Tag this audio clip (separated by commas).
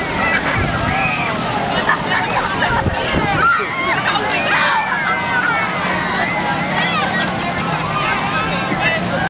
Speech